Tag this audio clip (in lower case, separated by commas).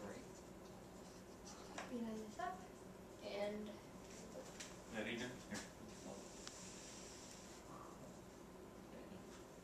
speech